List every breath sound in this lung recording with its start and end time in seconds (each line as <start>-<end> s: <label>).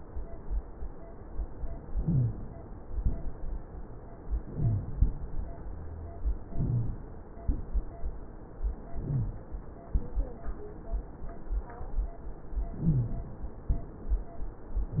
1.92-2.50 s: inhalation
1.96-2.33 s: wheeze
4.37-4.96 s: inhalation
4.48-4.86 s: wheeze
6.44-7.03 s: inhalation
6.52-6.89 s: wheeze
8.93-9.52 s: inhalation
9.01-9.38 s: wheeze
12.75-13.34 s: inhalation
12.81-13.22 s: wheeze